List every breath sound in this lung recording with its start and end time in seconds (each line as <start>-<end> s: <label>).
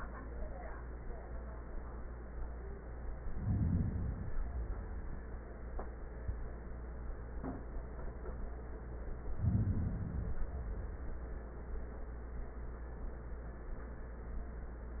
3.16-4.26 s: inhalation
4.29-5.46 s: exhalation
9.26-10.44 s: inhalation
10.45-11.67 s: exhalation